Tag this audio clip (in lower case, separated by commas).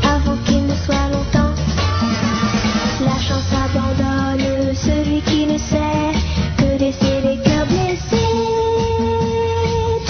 violin, guitar, musical instrument, ukulele, bowed string instrument, music